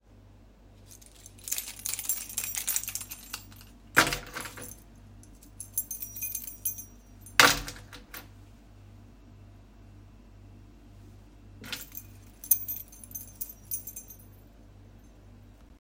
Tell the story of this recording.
I handled my keychain while walking a few steps in the hallway.